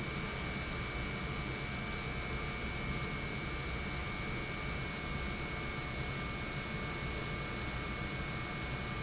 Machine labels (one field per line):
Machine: pump